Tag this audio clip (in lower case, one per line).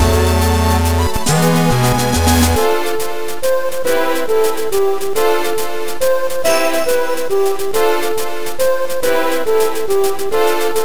music